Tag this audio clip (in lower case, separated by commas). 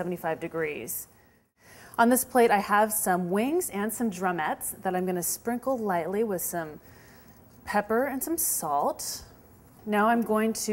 speech